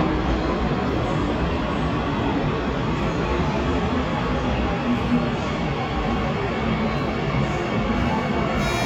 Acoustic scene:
subway station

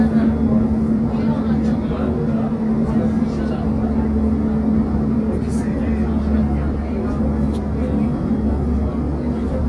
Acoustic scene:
subway train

